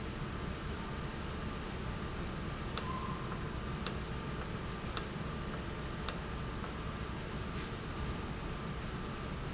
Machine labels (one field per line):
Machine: valve